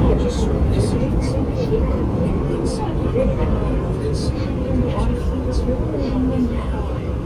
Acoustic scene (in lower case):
subway train